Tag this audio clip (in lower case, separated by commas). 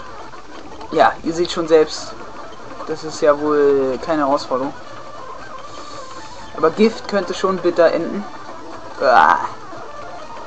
speech, music